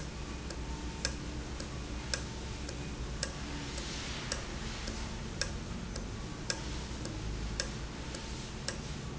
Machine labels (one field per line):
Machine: valve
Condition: normal